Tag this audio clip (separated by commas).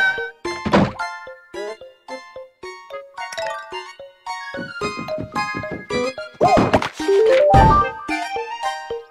inside a small room, Music